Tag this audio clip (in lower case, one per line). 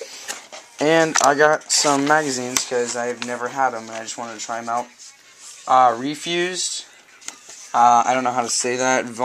speech
spray